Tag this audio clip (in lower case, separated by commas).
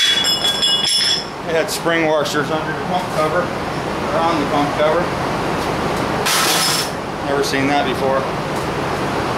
inside a small room, engine, speech